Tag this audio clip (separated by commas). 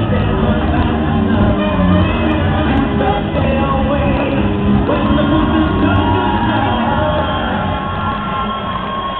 Cheering, Music